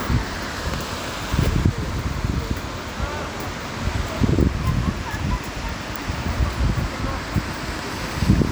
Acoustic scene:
street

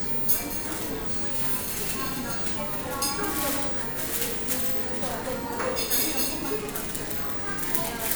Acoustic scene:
cafe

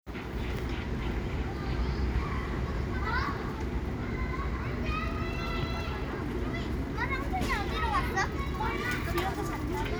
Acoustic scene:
residential area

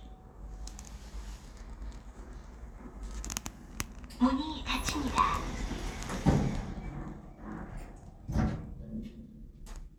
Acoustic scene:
elevator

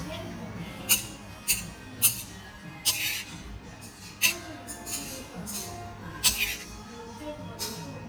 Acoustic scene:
restaurant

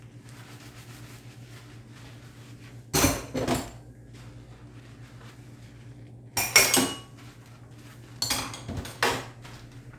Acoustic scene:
kitchen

